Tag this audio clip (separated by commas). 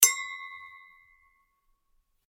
Glass, Chink